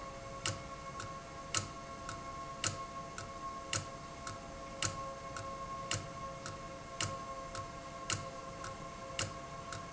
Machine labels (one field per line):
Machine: valve